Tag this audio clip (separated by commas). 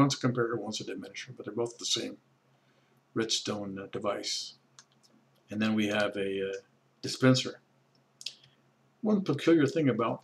Speech